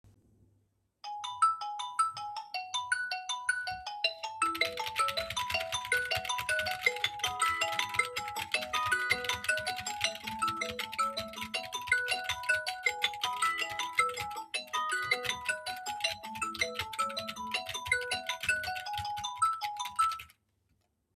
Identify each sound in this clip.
phone ringing, keyboard typing